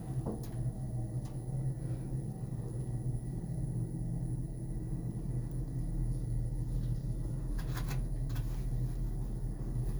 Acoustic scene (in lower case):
elevator